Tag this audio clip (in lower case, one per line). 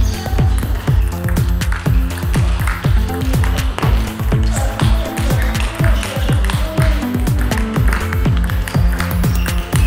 playing table tennis